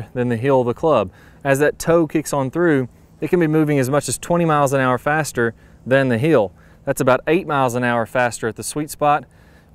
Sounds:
speech

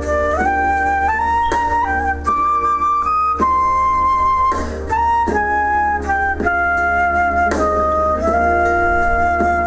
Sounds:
playing flute
woodwind instrument
flute

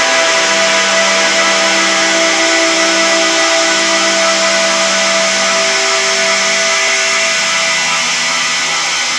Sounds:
music

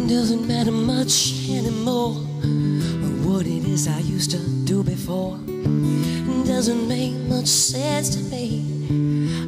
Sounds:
music
female singing

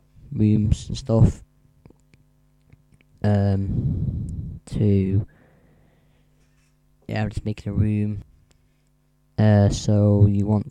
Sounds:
speech

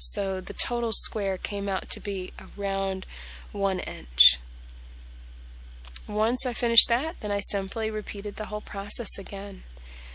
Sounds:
speech

